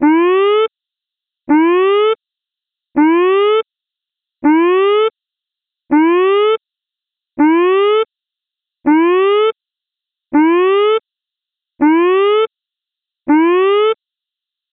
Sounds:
Alarm

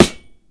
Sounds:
Thump

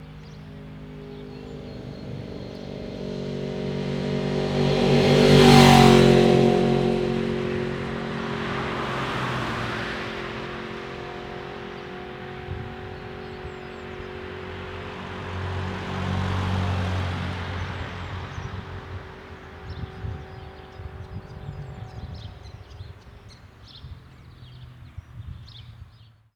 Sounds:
Vehicle, roadway noise, Motorcycle, Motor vehicle (road)

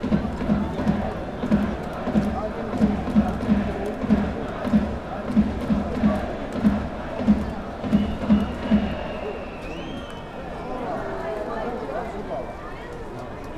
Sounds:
Crowd, Human group actions

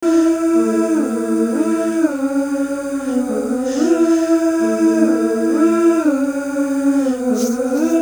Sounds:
Human voice

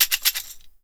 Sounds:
Tambourine, Music, Musical instrument, Percussion

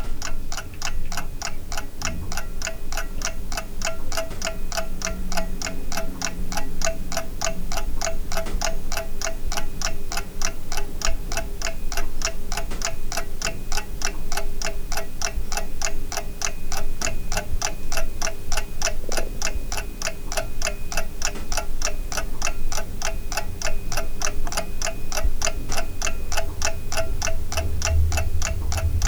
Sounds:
Mechanisms, Clock

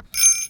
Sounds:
Bell

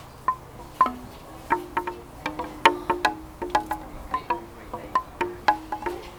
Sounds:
Wind chime, Chime, Bell

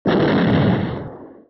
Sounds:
Boom, Explosion

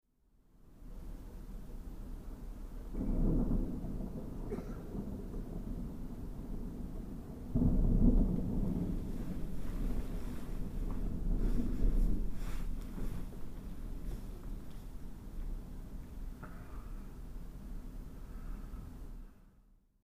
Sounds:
Thunder, Water, Thunderstorm, Rain

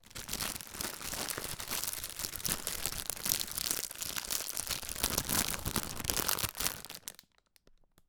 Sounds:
Crackle

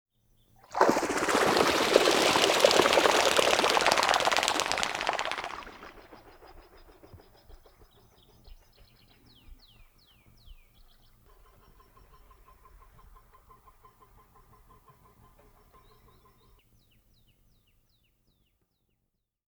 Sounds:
Animal, Bird, Wild animals

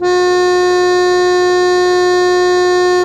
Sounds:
Music, Organ, Keyboard (musical), Musical instrument

